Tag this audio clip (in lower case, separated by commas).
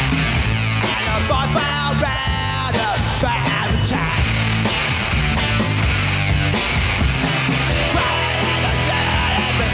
music